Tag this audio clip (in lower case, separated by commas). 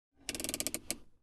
motor vehicle (road), car, mechanisms, vehicle